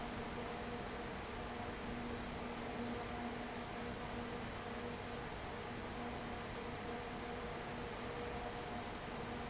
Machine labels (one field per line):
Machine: fan